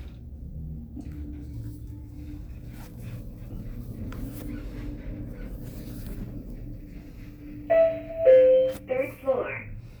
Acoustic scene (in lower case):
elevator